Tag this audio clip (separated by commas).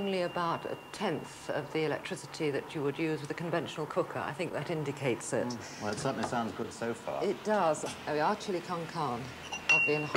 Speech